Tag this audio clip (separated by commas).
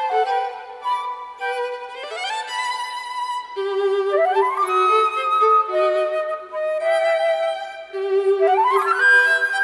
Music, fiddle, Musical instrument, Flute